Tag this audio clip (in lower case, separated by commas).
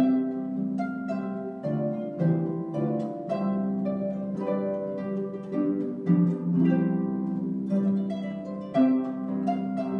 playing harp